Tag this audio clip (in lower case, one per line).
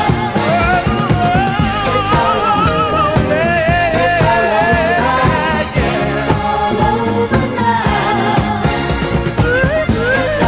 pop music
music
soul music